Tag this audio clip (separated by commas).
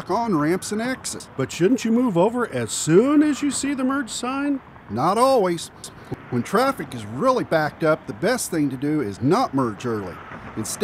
Speech